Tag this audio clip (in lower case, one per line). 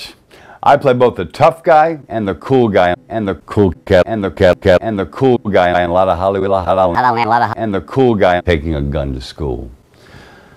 speech